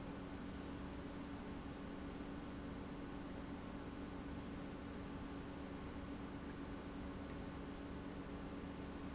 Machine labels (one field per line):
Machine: pump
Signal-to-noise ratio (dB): 6 dB